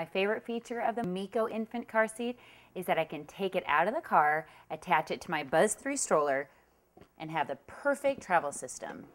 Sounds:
Speech

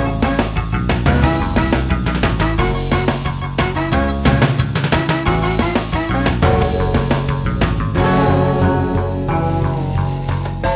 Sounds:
Rhythm and blues, Music, Pop music

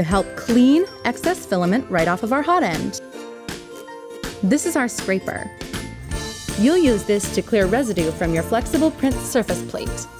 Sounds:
Music, Speech

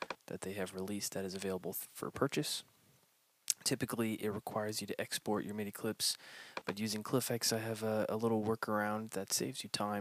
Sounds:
Speech

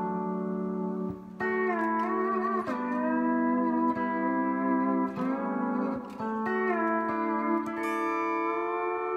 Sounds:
playing steel guitar

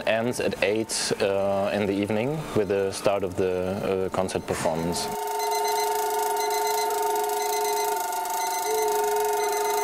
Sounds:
Speech

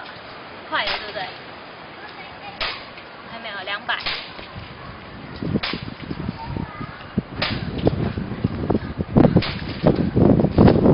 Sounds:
Speech, outside, urban or man-made

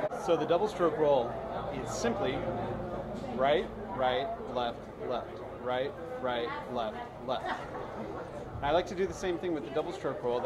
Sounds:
Speech

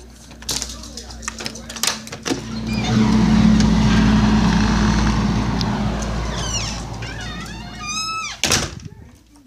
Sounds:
outside, urban or man-made

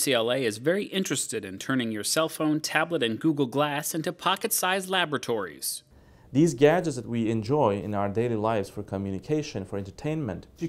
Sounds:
Speech

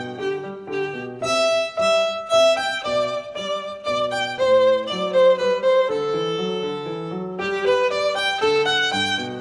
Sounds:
Violin, Music, Musical instrument

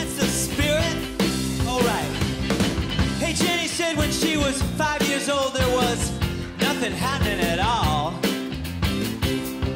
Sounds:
Music, Rock and roll

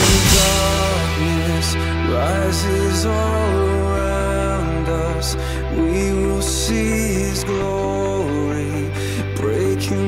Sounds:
Drum, Musical instrument, Sad music, Drum kit, Music

